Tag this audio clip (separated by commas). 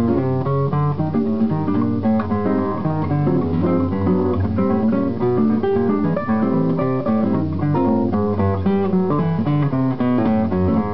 Guitar, Music, Acoustic guitar, Musical instrument